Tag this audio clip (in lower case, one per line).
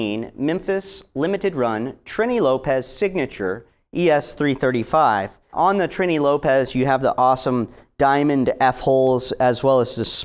speech